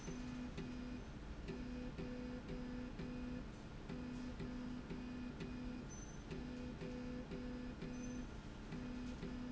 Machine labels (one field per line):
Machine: slide rail